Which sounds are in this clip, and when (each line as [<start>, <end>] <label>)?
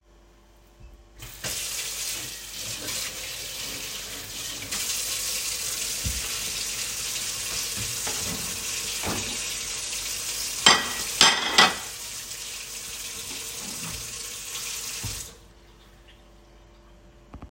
[1.28, 15.36] running water
[7.83, 9.39] wardrobe or drawer
[10.62, 11.83] cutlery and dishes
[13.47, 14.24] wardrobe or drawer